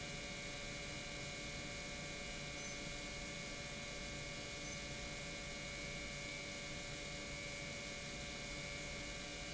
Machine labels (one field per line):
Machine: pump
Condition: normal